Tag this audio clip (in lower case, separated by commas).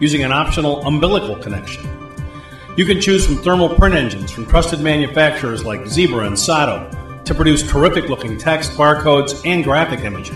music, speech